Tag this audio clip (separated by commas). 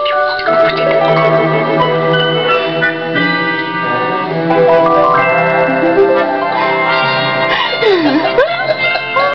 Music